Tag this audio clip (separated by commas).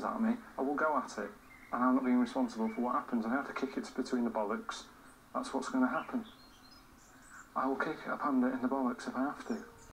Speech